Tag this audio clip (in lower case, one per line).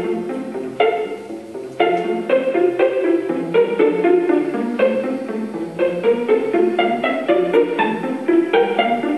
music